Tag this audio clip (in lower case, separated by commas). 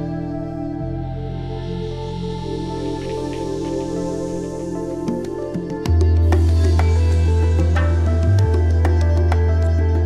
new-age music